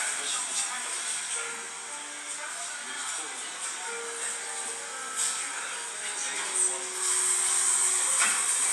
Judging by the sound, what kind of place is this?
cafe